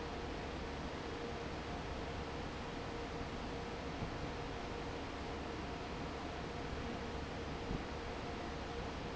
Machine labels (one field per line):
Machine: fan